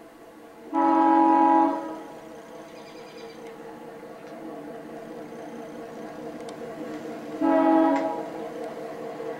A train horn as it passes by